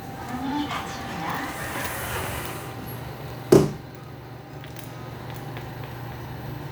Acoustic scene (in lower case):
elevator